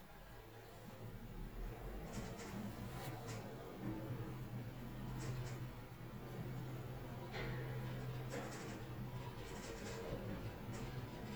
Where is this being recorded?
in an elevator